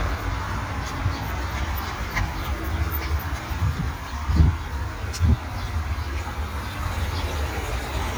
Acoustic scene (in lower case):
park